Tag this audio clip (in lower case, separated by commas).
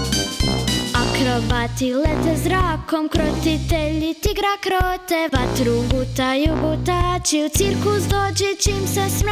music